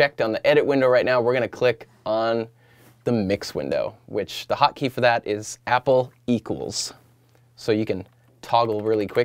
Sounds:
speech

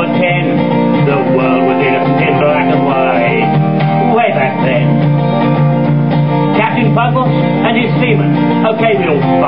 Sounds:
television
speech
music

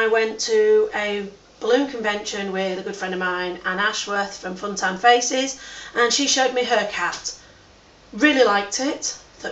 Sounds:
speech

